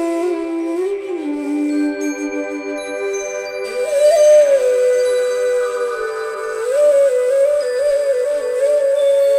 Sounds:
Music

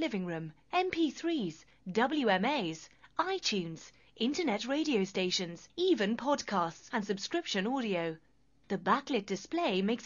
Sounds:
Speech

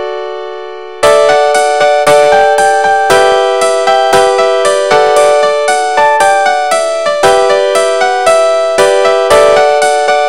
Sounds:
Background music, Music

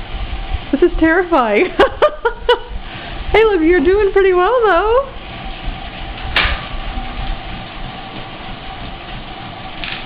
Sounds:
Speech

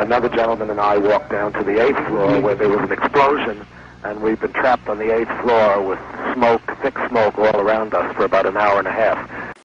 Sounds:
Speech

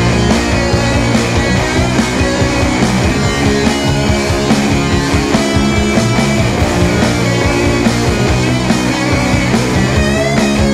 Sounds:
Music, Progressive rock

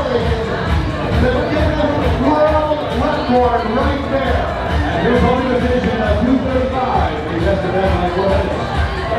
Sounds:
Speech, Music

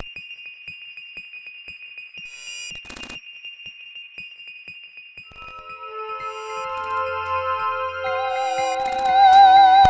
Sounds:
Music, Musical instrument

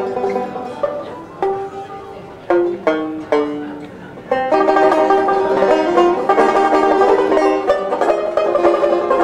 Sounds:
Pizzicato

